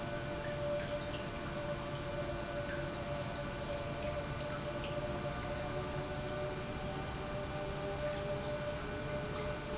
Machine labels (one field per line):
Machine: pump